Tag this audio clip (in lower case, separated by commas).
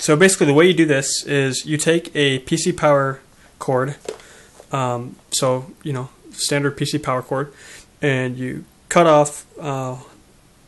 speech